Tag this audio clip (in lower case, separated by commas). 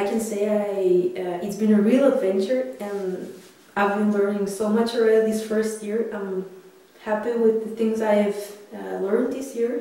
speech